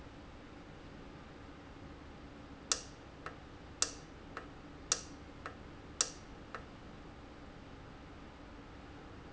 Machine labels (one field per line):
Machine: valve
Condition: normal